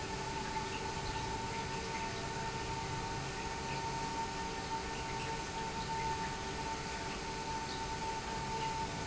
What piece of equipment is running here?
pump